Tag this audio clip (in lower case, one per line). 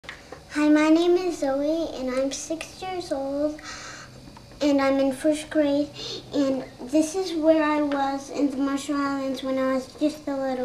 speech
inside a large room or hall